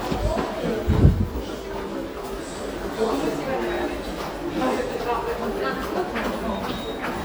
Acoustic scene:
subway station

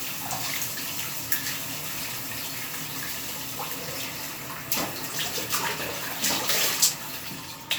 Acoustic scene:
restroom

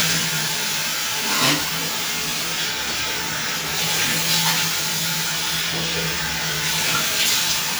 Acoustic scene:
restroom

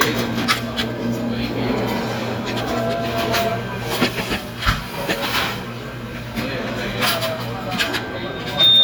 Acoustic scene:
restaurant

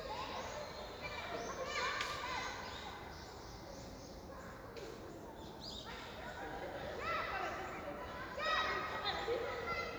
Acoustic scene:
park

